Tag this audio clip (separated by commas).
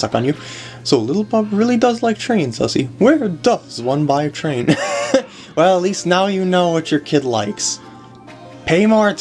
Speech, Music